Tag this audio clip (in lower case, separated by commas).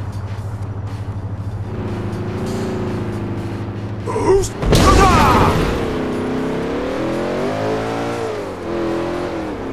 accelerating, vroom, speech, vehicle, car